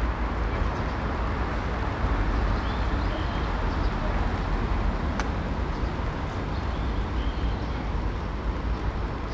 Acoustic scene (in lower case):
park